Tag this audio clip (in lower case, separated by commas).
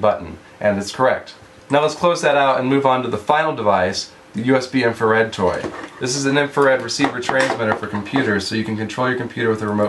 speech, inside a small room